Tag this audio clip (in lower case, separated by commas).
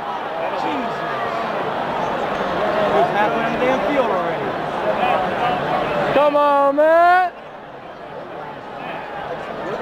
speech